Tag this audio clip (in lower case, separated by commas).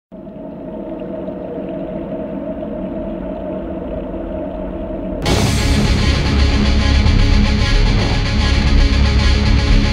music, outside, rural or natural